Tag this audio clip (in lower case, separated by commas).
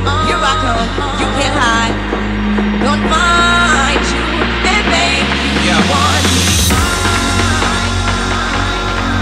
dubstep, electronic music, music